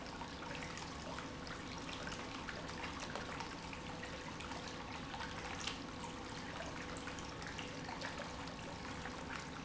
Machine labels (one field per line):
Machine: pump